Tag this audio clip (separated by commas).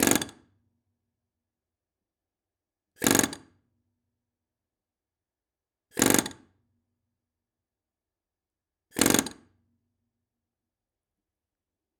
Tools